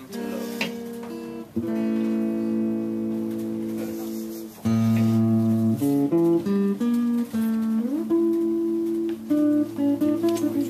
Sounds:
Musical instrument, Music, Plucked string instrument, Electric guitar, Guitar

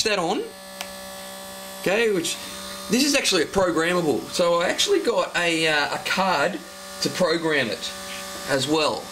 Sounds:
Speech

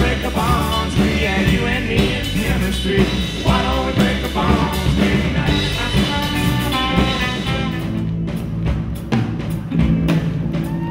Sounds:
Singing, Music, Jazz

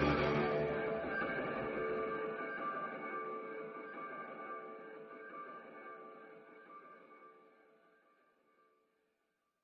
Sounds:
Silence, Music

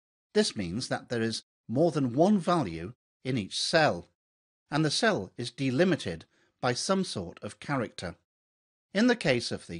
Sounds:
Speech

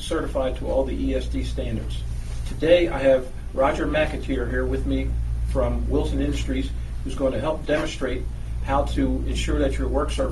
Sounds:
Speech

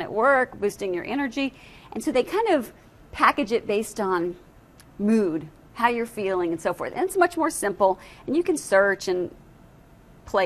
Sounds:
inside a large room or hall, Speech

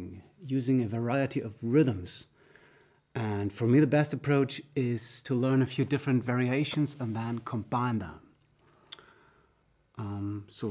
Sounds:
Speech

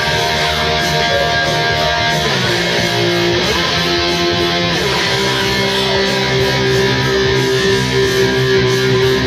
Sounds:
Music

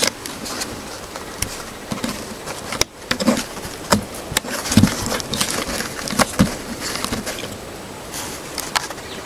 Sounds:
Rustling leaves

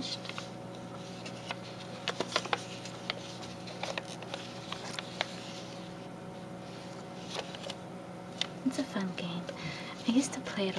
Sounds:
Speech

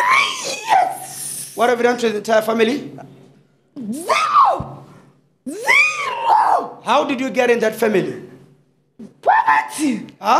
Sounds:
Screaming, people screaming, Speech

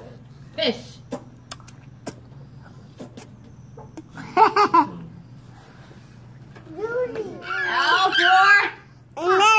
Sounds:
kid speaking, Speech

